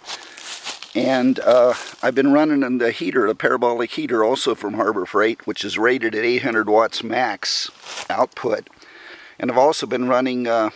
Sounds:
Speech

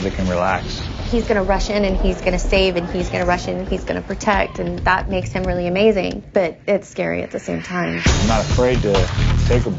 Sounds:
Music, Speech

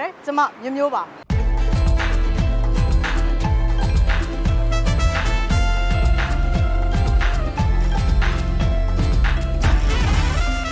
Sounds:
Music, Speech

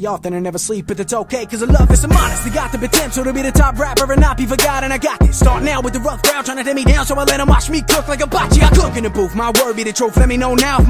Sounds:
rapping

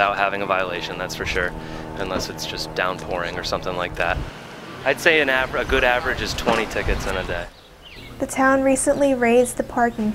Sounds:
Speech

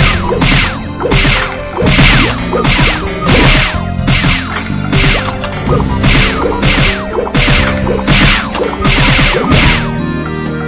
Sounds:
Music

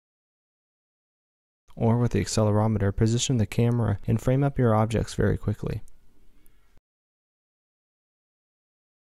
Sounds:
Speech

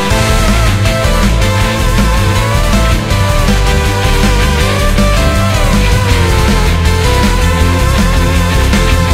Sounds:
Music

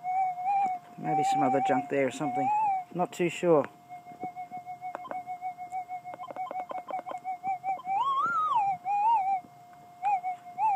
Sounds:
Speech

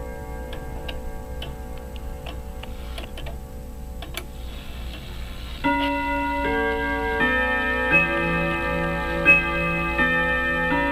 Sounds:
Tick, Tick-tock

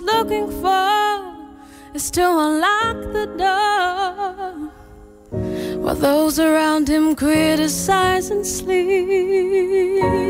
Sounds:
Music

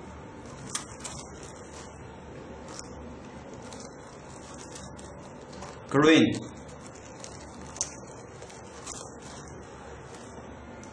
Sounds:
Speech

